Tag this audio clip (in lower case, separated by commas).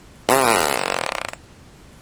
fart